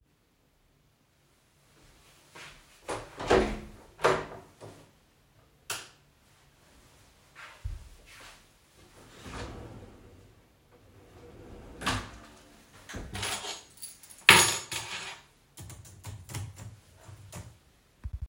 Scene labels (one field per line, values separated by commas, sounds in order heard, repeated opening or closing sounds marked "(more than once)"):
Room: kitchen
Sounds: door, light switch, wardrobe or drawer, keys, keyboard typing